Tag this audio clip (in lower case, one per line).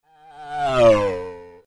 race car
motor vehicle (road)
vehicle
car